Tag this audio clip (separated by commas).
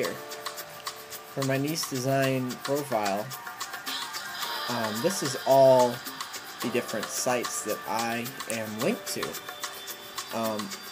Speech, Music